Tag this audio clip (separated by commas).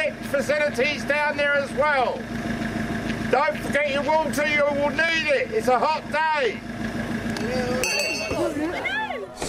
Speech